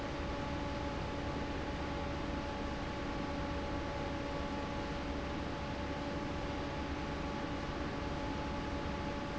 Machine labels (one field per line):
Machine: fan